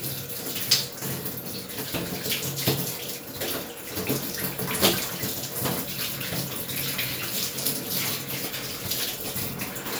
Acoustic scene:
restroom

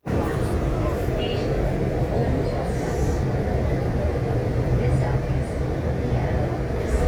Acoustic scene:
subway train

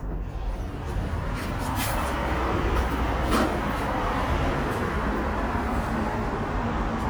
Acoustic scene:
elevator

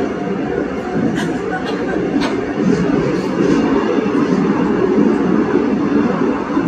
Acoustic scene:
subway train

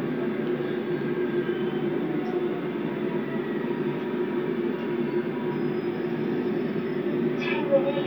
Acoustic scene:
subway train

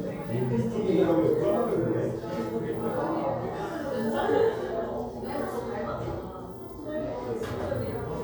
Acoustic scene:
crowded indoor space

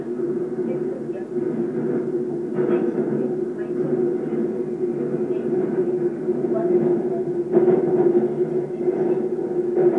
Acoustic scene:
subway train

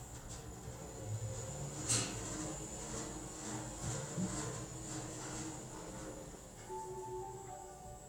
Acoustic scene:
elevator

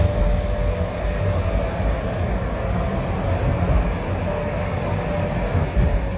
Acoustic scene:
car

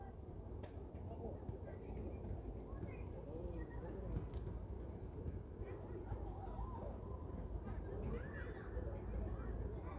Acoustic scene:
residential area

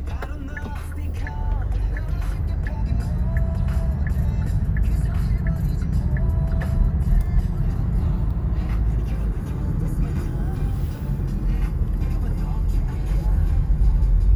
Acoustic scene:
car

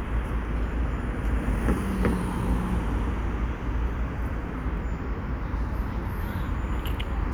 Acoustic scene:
residential area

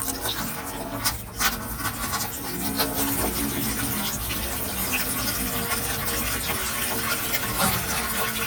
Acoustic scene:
kitchen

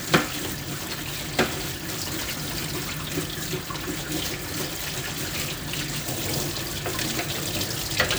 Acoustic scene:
kitchen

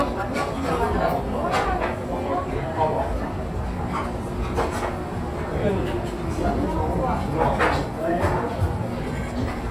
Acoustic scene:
restaurant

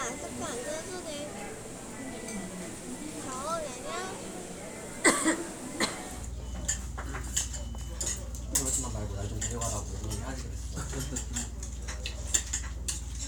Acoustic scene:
restaurant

